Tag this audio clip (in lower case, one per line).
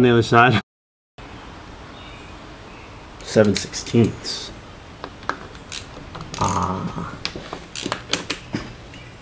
speech